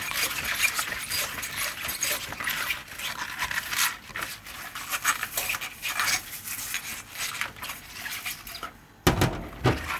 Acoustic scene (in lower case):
kitchen